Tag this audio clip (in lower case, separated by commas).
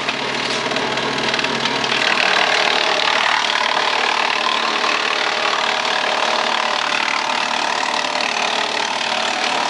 wood, sawing